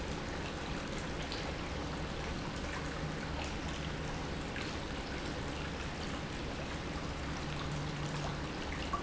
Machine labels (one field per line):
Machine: pump